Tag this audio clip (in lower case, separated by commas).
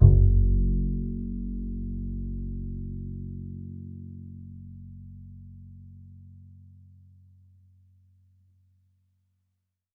musical instrument, music, bowed string instrument